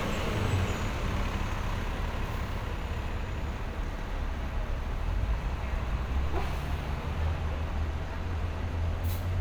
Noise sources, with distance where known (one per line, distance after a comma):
large-sounding engine